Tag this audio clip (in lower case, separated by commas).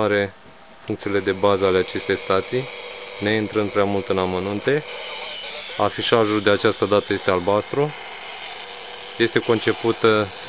speech, radio